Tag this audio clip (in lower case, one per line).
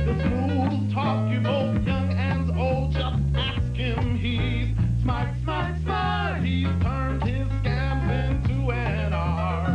music